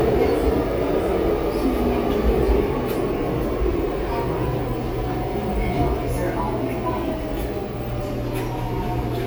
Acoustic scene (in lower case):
subway train